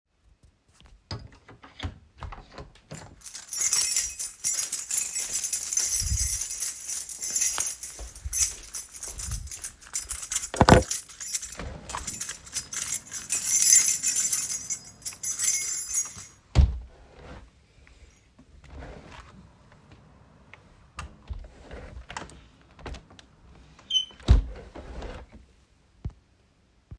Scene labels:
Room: bedroom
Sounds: door, keys, window

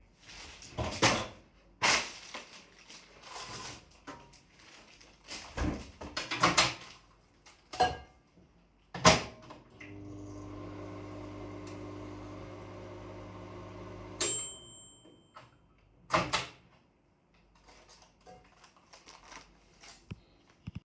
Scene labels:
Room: kitchen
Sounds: microwave, cutlery and dishes

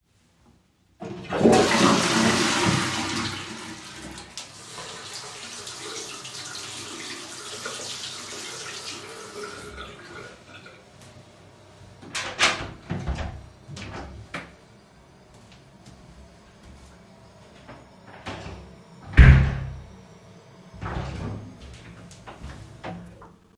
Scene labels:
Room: lavatory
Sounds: toilet flushing, running water, door (more than once), footsteps

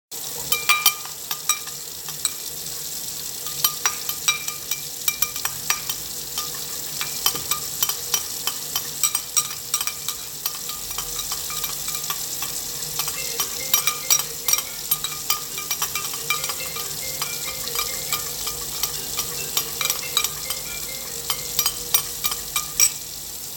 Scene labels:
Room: kitchen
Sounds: running water, cutlery and dishes, phone ringing

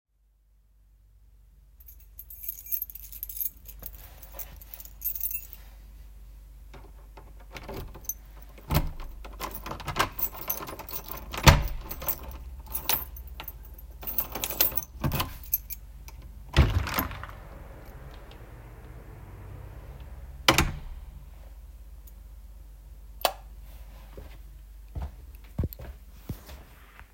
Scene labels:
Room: hallway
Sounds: keys, door (more than once), light switch, footsteps

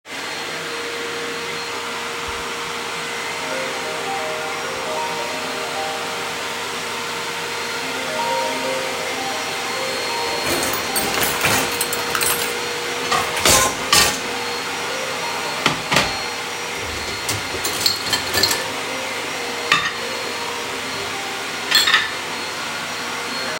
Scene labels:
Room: kitchen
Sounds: vacuum cleaner, phone ringing, cutlery and dishes

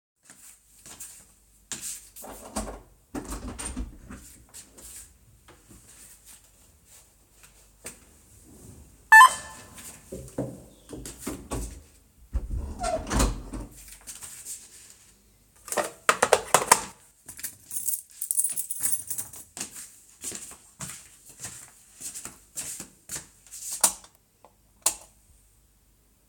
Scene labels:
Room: hallway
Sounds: footsteps, door (more than once), bell ringing, keys, light switch

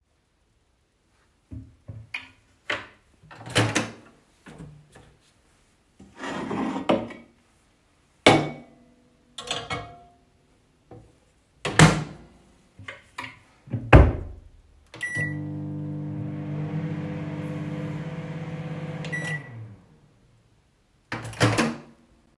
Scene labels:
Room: kitchen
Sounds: door, wardrobe or drawer (more than once), microwave

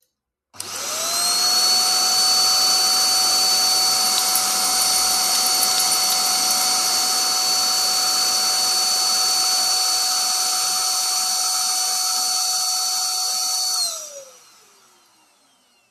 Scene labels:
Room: bedroom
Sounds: vacuum cleaner, keys

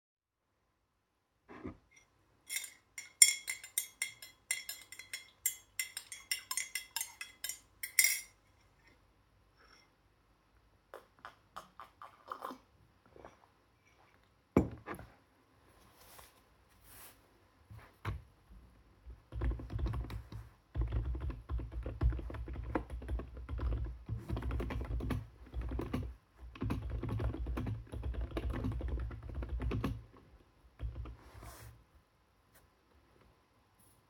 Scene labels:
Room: living room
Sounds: cutlery and dishes, keyboard typing

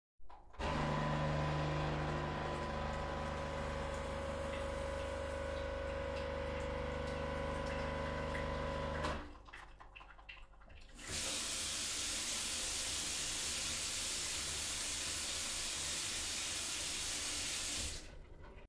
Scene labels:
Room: kitchen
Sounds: microwave, running water

